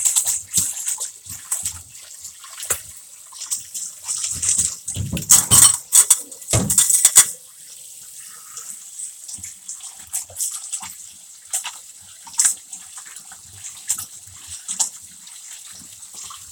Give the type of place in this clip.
kitchen